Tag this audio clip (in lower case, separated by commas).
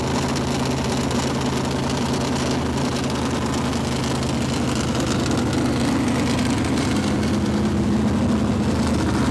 engine, vehicle, car, medium engine (mid frequency)